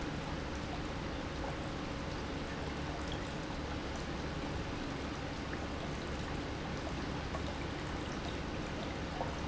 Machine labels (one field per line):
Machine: pump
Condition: normal